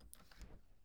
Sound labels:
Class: window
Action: opening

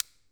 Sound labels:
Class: switch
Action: being turned off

